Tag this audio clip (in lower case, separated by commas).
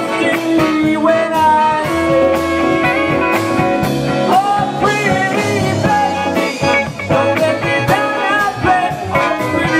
orchestra, rhythm and blues, music